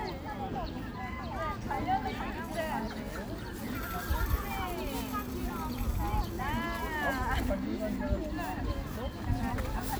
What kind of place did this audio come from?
park